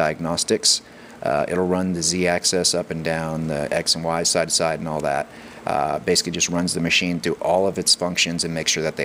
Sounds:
speech

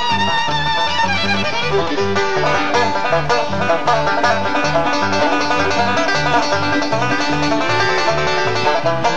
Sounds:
plucked string instrument, banjo, musical instrument, music, playing banjo

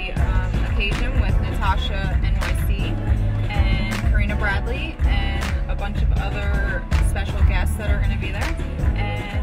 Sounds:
music, speech

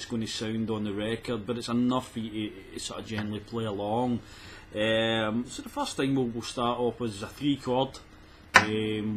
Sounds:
speech

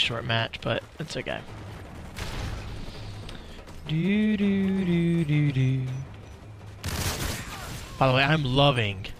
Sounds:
speech

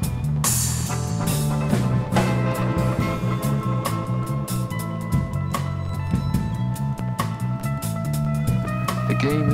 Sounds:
music, speech

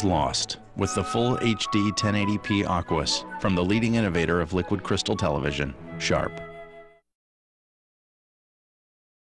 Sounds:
speech, music

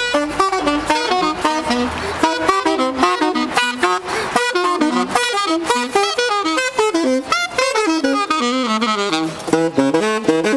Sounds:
playing saxophone

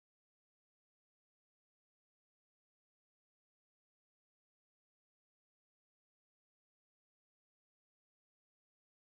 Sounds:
silence

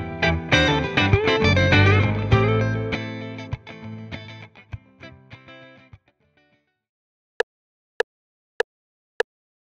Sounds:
wood block

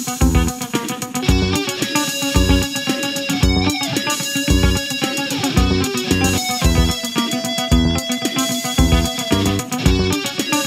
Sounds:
musical instrument, strum, electric guitar, guitar, plucked string instrument, music

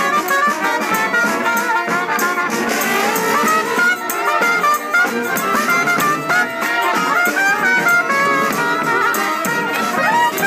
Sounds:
music, playing trumpet, brass instrument, trumpet, musical instrument, jazz

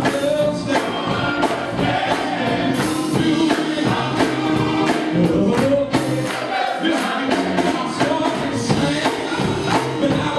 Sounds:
choir, music, male singing

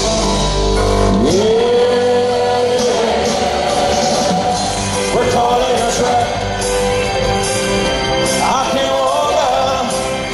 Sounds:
music, singing, vocal music

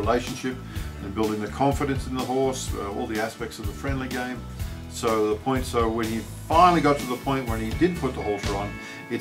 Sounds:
speech, music

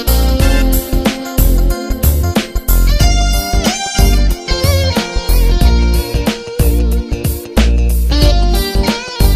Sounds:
music, rhythm and blues

